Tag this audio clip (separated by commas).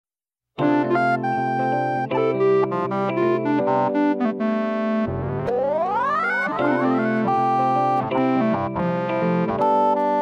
Electric piano, Synthesizer